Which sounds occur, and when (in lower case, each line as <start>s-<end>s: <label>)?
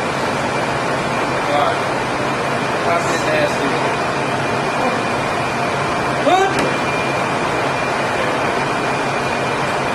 0.0s-9.9s: mechanisms
0.3s-1.1s: human sounds
1.7s-2.1s: human sounds